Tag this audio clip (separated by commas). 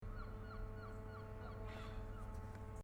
Animal, Gull, Bird, Wild animals